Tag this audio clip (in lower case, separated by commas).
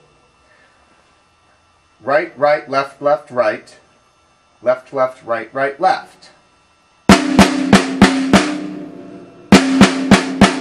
musical instrument, drum, music, drum kit, speech